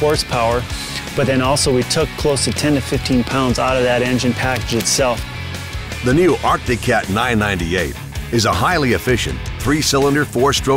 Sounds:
music, speech

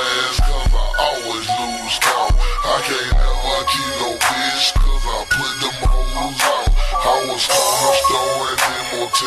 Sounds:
music

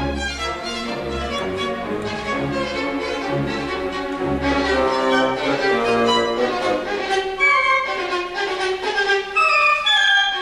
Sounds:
musical instrument, music, fiddle

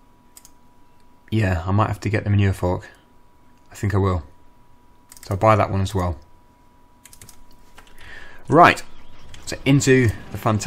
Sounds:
computer keyboard

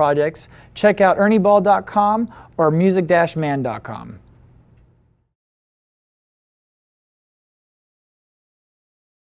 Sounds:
speech

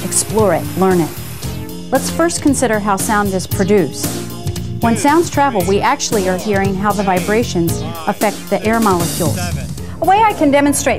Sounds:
speech, music

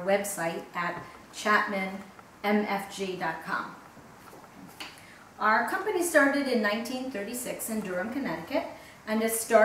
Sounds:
speech

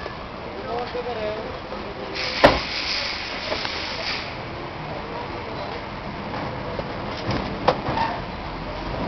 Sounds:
door slamming

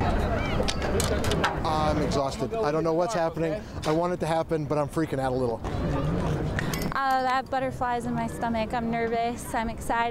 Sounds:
speech

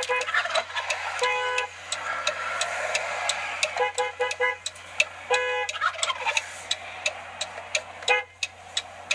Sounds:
gobble, fowl, turkey

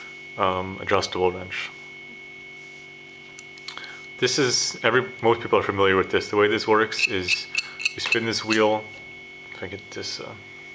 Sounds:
speech

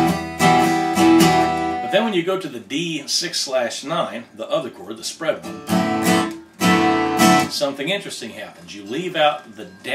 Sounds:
music, guitar, musical instrument, acoustic guitar, speech, plucked string instrument

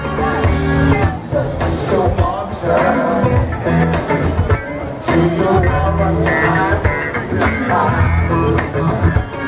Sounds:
rhythm and blues, music

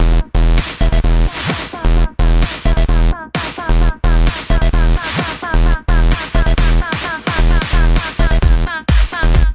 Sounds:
music, electronic music, techno

